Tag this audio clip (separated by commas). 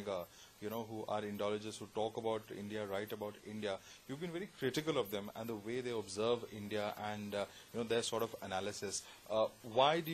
Speech